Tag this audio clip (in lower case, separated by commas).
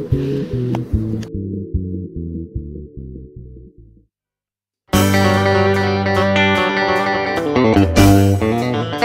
music, tapping (guitar technique)